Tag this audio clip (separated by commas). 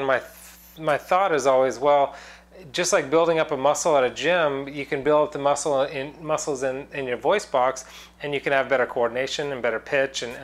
Speech